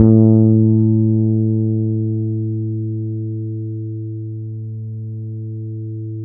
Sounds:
musical instrument, bass guitar, plucked string instrument, music, guitar

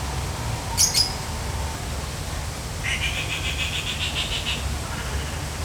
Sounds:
wild animals, bird, animal

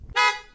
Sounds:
car, motor vehicle (road), alarm, honking, vehicle

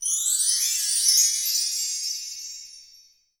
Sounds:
chime, bell

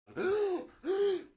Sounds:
respiratory sounds, breathing

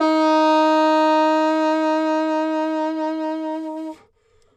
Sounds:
music, musical instrument, woodwind instrument

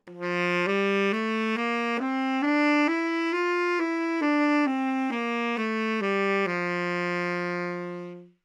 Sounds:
music, musical instrument, woodwind instrument

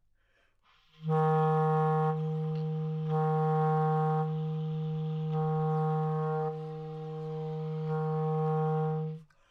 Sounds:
music, wind instrument, musical instrument

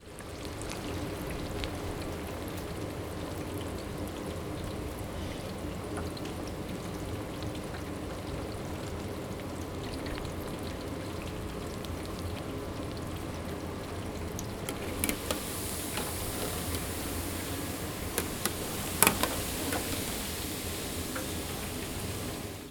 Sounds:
domestic sounds, frying (food)

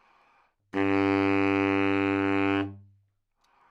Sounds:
musical instrument, wind instrument, music

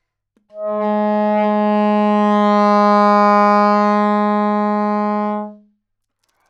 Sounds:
music, musical instrument, wind instrument

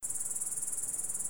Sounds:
wild animals, insect, animal, cricket

